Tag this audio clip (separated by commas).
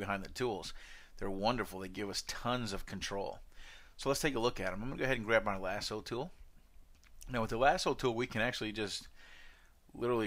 Speech